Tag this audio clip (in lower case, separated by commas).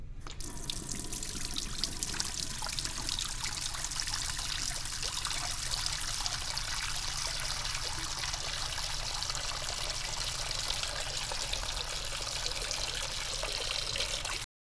faucet, domestic sounds